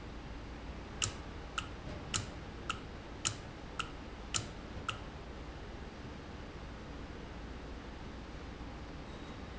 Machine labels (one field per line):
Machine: valve